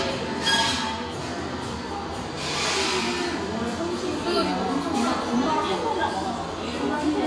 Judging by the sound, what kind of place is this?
cafe